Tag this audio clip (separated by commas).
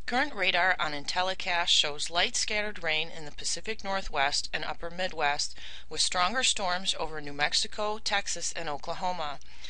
Speech